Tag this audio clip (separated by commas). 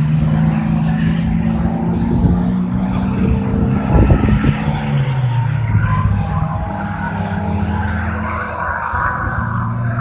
skidding